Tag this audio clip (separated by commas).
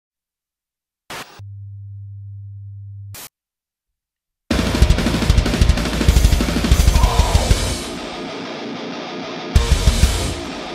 Drum kit, Drum, Music, Musical instrument, Cymbal